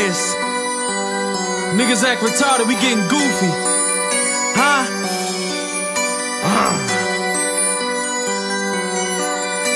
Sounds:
Theme music, Background music, Music, New-age music, Soundtrack music

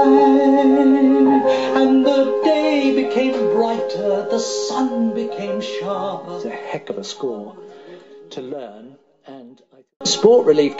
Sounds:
Male singing, Speech, Music

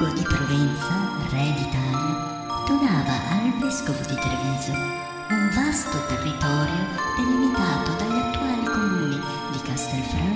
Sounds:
Music, Speech

